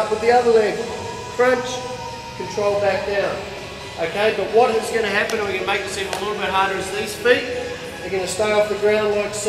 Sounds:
music
speech

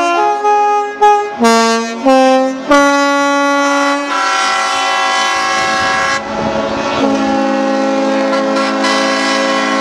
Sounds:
music

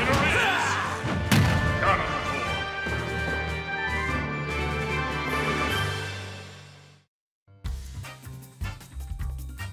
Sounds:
music

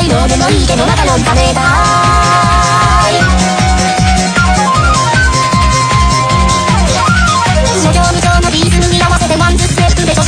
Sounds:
music

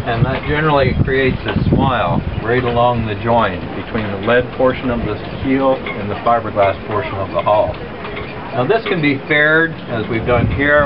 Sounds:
speech

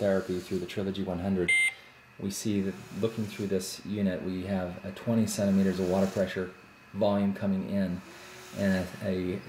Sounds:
speech
beep

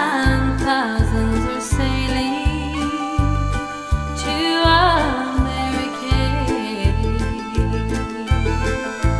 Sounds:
music

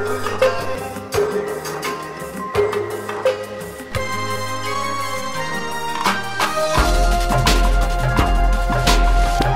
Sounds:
dubstep
music

